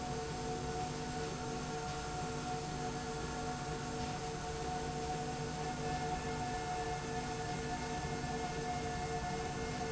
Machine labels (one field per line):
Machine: slide rail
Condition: normal